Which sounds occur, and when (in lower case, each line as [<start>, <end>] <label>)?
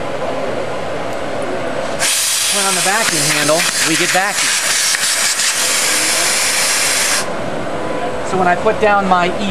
[0.00, 9.50] mechanisms
[1.07, 1.17] tick
[2.45, 3.61] male speech
[2.48, 9.50] conversation
[3.02, 3.11] tick
[3.63, 3.74] tick
[3.84, 4.46] male speech
[4.86, 4.99] tick
[5.86, 6.31] male speech
[8.26, 9.50] male speech